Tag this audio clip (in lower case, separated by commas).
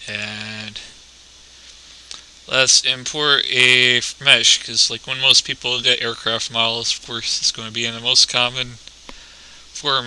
speech